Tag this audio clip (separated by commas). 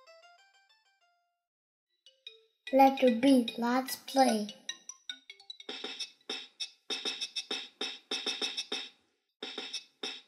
Speech, Music